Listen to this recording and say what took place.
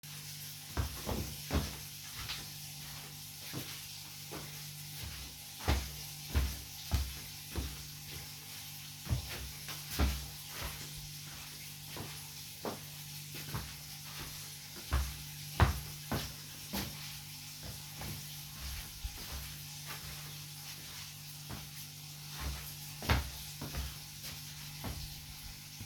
The sound of footsteps is heard while water is running in the background.